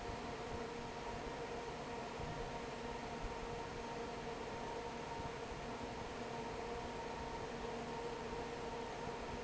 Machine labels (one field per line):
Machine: fan